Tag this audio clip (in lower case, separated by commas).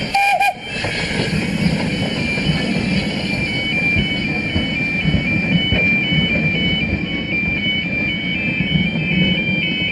heavy engine (low frequency), vehicle, engine